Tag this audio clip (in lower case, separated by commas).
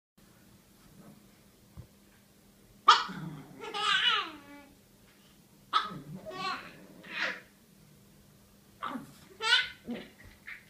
dog, animal, pets